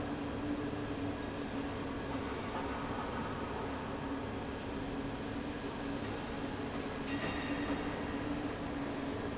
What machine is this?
fan